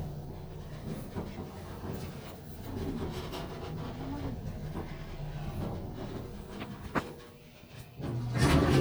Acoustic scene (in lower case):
elevator